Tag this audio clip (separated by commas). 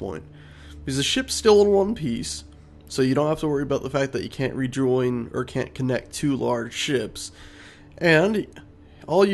Speech